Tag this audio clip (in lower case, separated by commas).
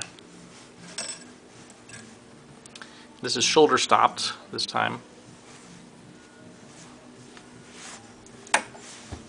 speech